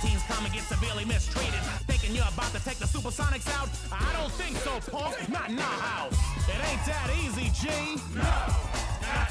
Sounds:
Music

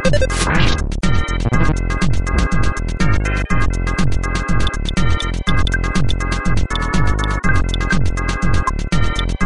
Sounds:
Music

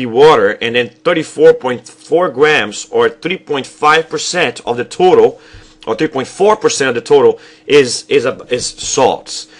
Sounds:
Speech

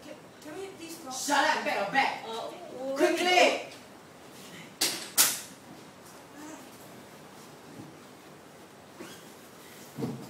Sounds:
Speech

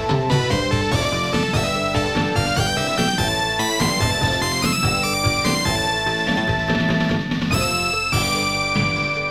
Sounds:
Music, Video game music

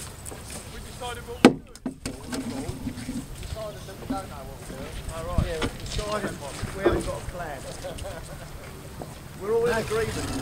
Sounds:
Speech, Animal

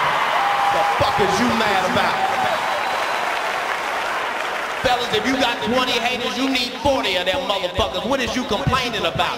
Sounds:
Speech

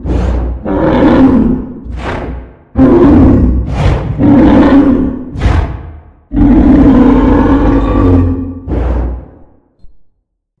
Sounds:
dinosaurs bellowing

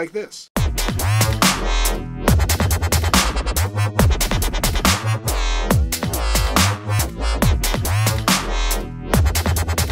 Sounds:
Sound effect, Music, Speech

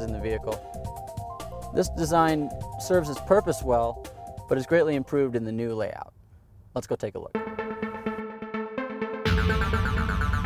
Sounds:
Music, Speech

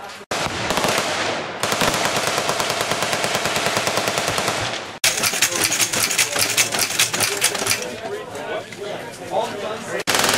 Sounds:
machine gun shooting

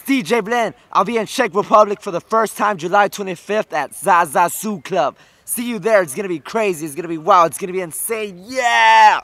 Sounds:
Speech

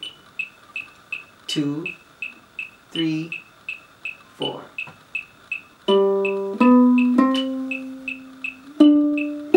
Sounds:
Musical instrument, Speech, Plucked string instrument, Ukulele, Guitar, Music

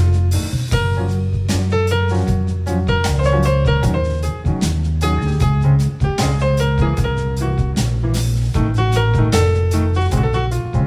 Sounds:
Musical instrument

